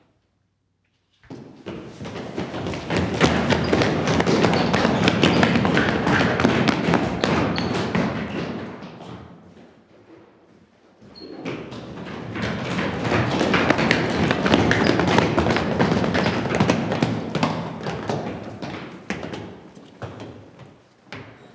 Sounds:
Run

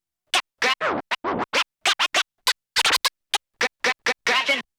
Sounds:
Musical instrument, Scratching (performance technique), Music

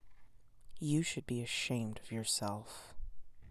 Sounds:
Human voice

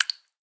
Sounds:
Liquid, Drip

